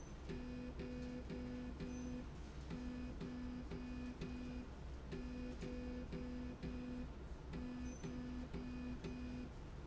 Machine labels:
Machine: slide rail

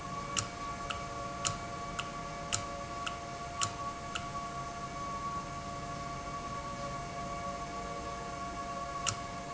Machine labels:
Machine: valve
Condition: normal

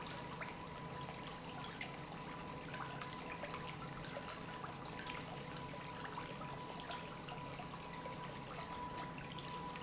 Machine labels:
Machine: pump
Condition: normal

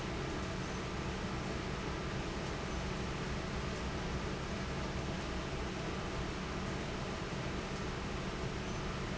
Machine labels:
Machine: fan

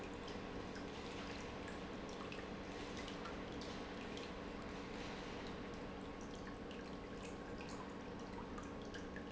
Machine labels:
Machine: pump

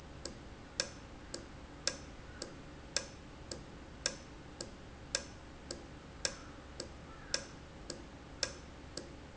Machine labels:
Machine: valve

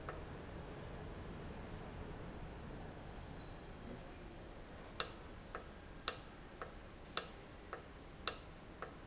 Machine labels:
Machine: valve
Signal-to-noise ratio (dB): 6 dB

